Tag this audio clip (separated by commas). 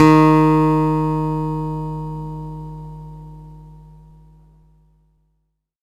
Plucked string instrument, Acoustic guitar, Music, Musical instrument, Guitar